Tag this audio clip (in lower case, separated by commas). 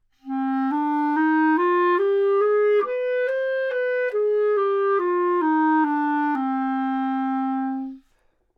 musical instrument, woodwind instrument, music